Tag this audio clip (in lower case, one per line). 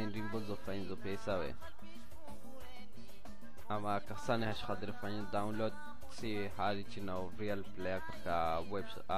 speech
music